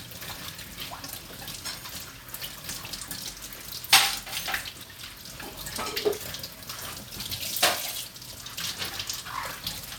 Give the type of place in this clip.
kitchen